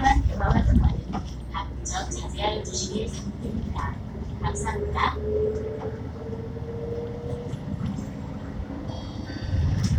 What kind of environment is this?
bus